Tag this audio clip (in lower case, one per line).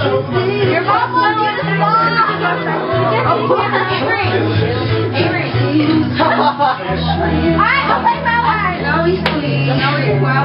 speech
female singing
music